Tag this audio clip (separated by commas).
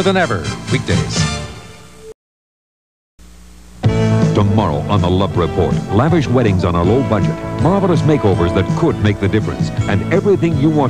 Music, Speech